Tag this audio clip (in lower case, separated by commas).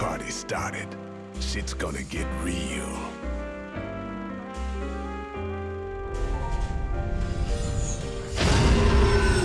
speech, music